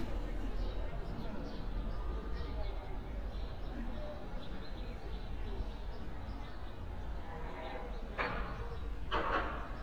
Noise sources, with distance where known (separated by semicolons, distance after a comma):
unidentified human voice, far